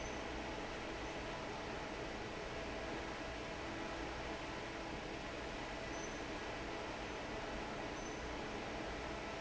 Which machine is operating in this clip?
fan